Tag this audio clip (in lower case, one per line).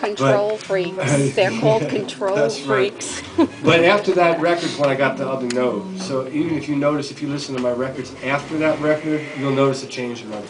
speech